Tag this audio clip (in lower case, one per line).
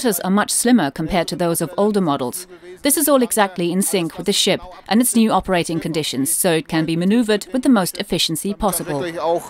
speech